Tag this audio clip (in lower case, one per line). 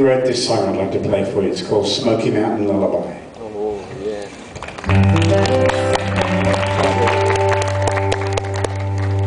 speech
music